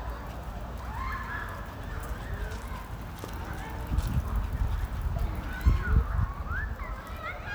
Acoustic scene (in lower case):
residential area